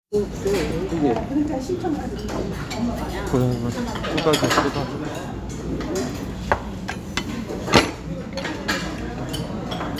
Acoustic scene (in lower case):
restaurant